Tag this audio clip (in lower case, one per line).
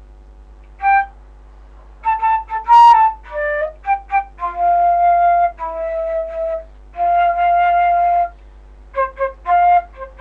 music